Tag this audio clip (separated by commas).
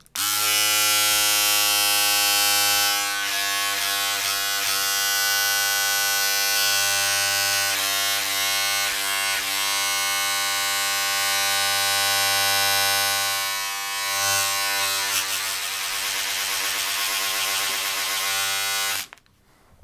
home sounds